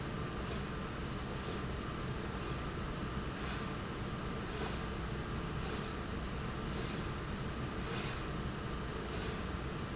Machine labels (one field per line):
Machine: slide rail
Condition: normal